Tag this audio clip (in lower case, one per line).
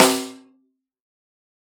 musical instrument
percussion
snare drum
music
drum